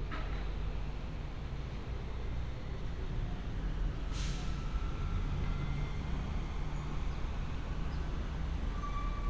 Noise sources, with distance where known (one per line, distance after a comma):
large-sounding engine, far